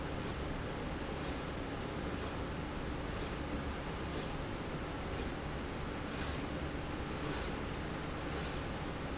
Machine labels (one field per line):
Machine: slide rail